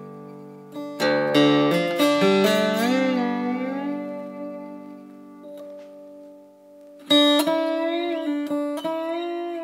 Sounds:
playing steel guitar

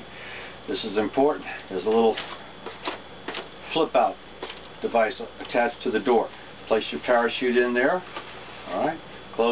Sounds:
speech

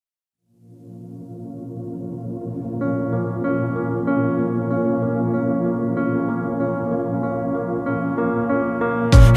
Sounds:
music, singing, ambient music

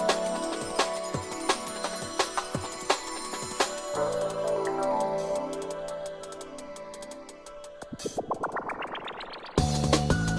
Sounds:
music

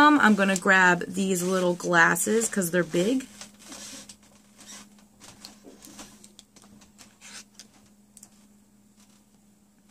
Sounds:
inside a small room, speech

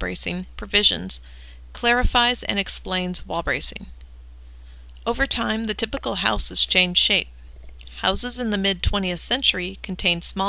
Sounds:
speech

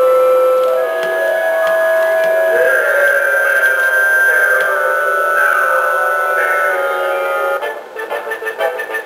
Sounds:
music

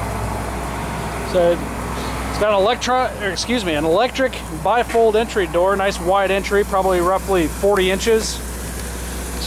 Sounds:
speech, vehicle

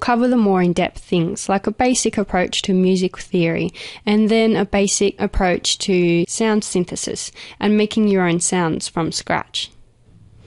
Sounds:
speech

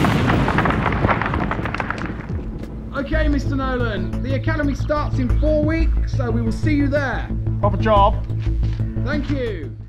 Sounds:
music, speech

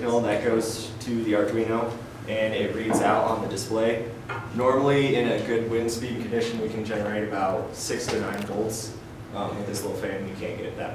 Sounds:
speech

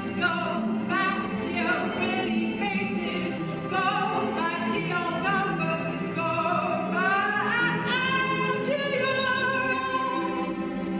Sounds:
musical instrument, fiddle, music, classical music, bowed string instrument, cello

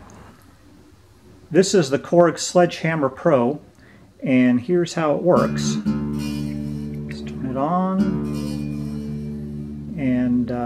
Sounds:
guitar, speech, music, electronic tuner

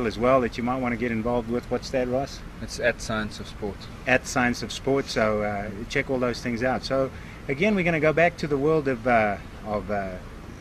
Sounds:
speech, outside, urban or man-made

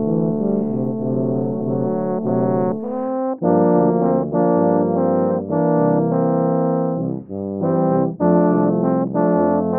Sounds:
brass instrument, jazz, musical instrument, music

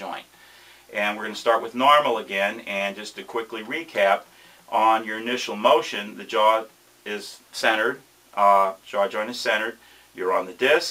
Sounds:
speech

